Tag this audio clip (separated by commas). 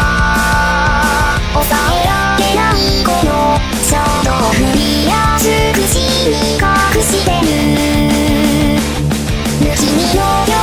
Music